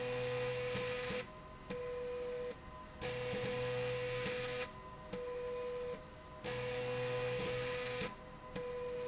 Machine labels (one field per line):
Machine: slide rail